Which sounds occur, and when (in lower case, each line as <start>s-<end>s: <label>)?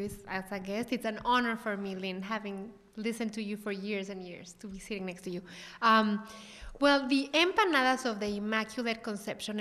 0.0s-2.6s: female speech
0.0s-9.6s: background noise
2.9s-5.4s: female speech
5.4s-5.8s: breathing
5.7s-6.2s: female speech
6.1s-6.7s: breathing
6.8s-9.6s: female speech